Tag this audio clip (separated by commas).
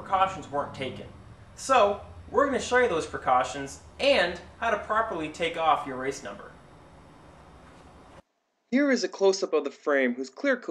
Speech